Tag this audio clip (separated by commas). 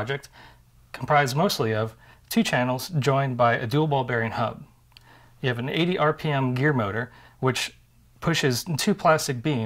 Speech